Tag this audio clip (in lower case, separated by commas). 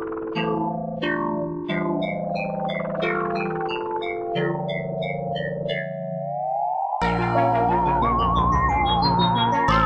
electronic music, electronic dance music, music